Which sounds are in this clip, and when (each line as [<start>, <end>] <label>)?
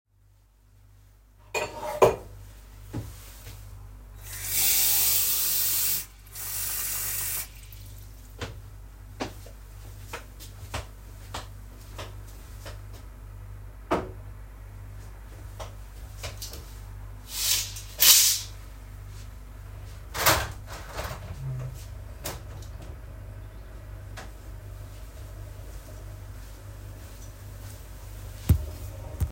[0.99, 2.67] cutlery and dishes
[4.02, 7.79] running water
[8.21, 13.76] footsteps
[13.81, 14.17] cutlery and dishes
[15.44, 16.74] footsteps
[19.86, 24.38] window
[24.69, 29.31] footsteps